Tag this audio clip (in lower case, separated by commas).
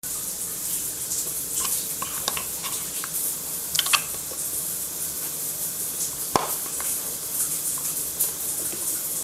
water, home sounds, bathtub (filling or washing)